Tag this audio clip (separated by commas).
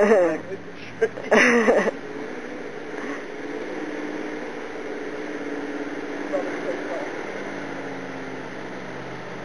Vehicle, Truck, Speech